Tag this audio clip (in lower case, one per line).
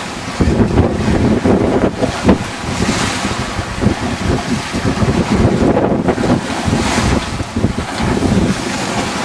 sailing
wind noise (microphone)
waves
wind
boat
ocean
sailing ship